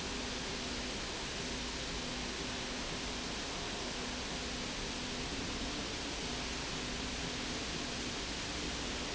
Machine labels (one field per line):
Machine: slide rail